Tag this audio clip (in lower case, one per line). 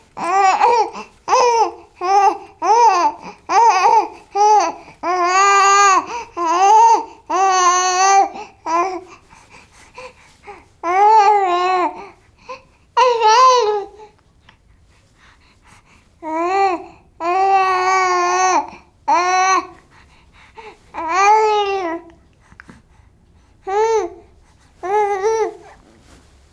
human voice
speech